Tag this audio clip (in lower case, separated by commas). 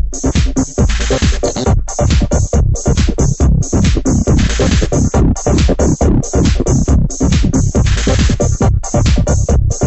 electronic music, music, trance music